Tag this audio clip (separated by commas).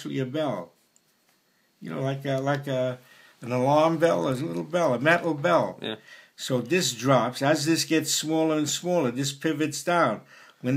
Speech